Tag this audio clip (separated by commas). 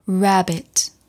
Human voice